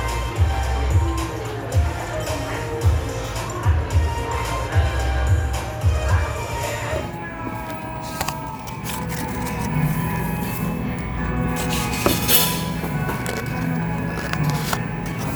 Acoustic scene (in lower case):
cafe